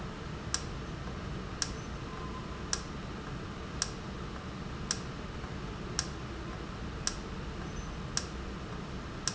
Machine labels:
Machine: valve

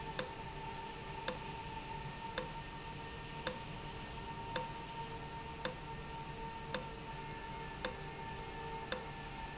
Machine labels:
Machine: valve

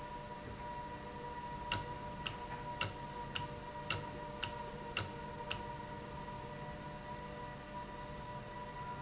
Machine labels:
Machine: valve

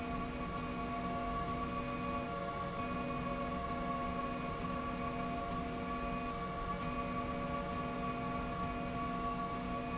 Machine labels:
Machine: slide rail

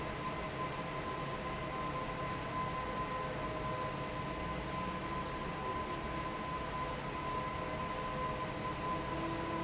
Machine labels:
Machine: fan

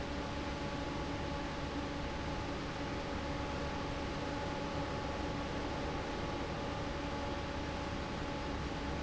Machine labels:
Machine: fan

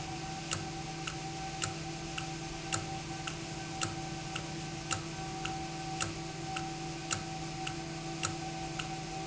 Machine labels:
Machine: valve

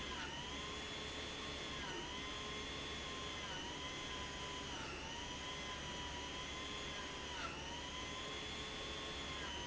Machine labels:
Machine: pump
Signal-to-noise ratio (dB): 6 dB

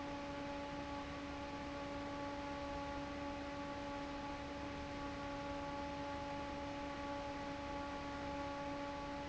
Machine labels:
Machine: fan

